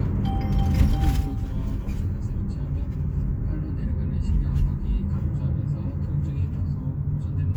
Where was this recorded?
in a car